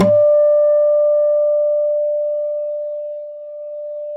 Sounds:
guitar, musical instrument, music, plucked string instrument, acoustic guitar

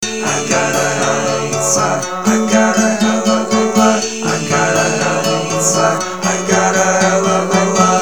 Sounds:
acoustic guitar, guitar, music, human voice, plucked string instrument, musical instrument

